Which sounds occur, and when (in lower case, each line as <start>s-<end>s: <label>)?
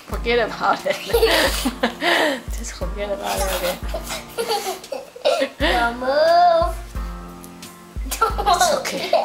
0.0s-9.2s: music
0.1s-1.1s: woman speaking
0.1s-9.2s: conversation
1.1s-2.3s: laughter
1.2s-1.7s: breathing
1.9s-2.3s: breathing
2.7s-3.7s: woman speaking
3.3s-4.1s: child speech
3.8s-5.0s: laughter
5.2s-5.5s: laughter
5.6s-5.9s: breathing
5.6s-5.9s: laughter
5.6s-6.8s: child speech
8.0s-8.8s: child speech
8.1s-9.2s: laughter
8.4s-9.2s: woman speaking